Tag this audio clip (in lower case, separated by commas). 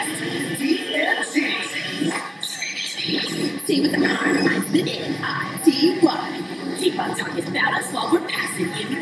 music